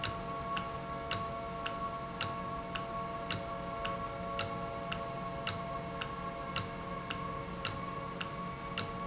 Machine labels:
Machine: valve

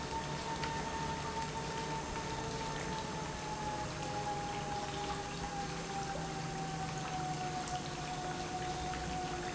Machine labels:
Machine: pump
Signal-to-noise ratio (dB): -6 dB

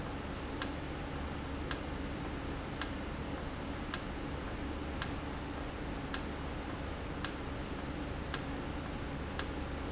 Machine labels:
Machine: valve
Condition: normal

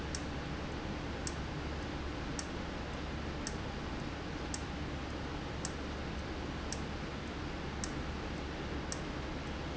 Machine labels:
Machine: valve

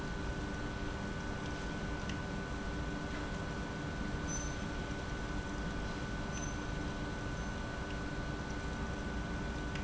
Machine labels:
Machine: pump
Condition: abnormal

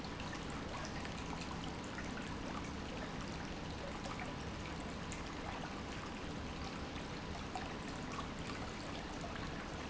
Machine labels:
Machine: pump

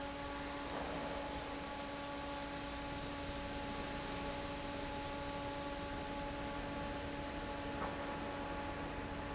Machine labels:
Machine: fan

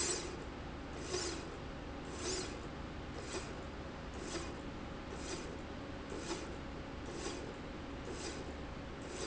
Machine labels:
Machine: slide rail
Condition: normal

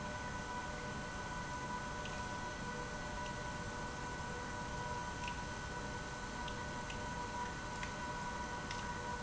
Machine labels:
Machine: pump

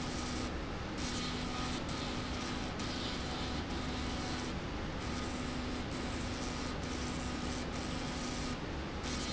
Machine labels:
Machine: slide rail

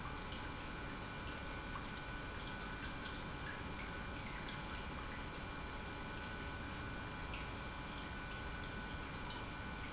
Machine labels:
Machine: pump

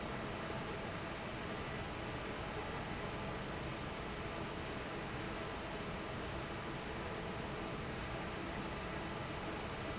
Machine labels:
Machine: fan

